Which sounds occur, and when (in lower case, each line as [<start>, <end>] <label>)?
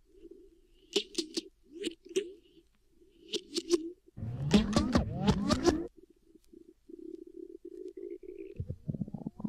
[0.00, 9.45] music
[0.15, 0.26] tick
[0.88, 1.39] sound effect
[1.79, 1.91] sound effect
[2.10, 2.23] sound effect
[2.71, 2.76] tick
[3.27, 3.82] sound effect
[4.12, 5.91] sound effect
[6.40, 6.48] tick
[7.10, 7.16] tick
[7.83, 7.90] tick
[8.50, 8.55] tick
[8.52, 9.45] sound effect